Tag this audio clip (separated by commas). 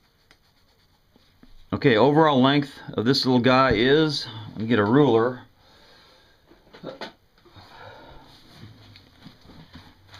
Speech, Tools